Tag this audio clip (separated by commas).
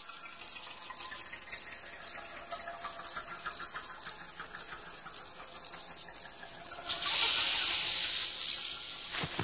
outside, rural or natural, Insect, Music